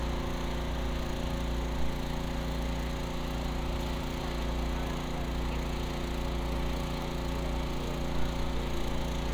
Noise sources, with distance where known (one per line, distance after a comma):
engine of unclear size, near